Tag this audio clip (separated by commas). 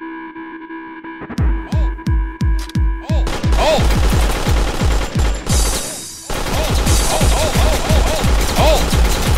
Music